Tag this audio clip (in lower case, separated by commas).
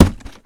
thump